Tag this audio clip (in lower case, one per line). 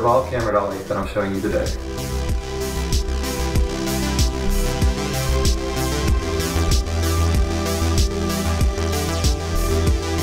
music
speech